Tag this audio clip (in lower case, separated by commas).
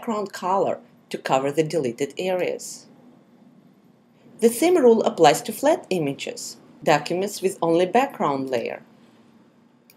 speech